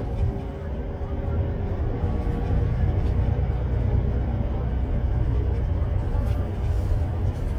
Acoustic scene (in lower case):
bus